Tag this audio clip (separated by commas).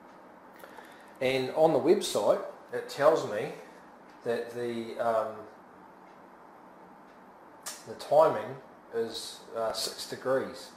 Speech, inside a small room